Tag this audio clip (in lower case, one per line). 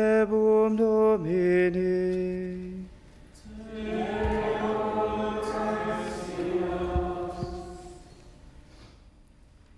chant